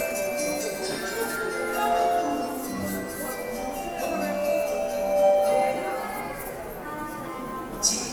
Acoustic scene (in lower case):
subway station